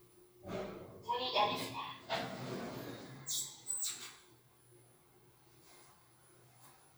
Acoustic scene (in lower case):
elevator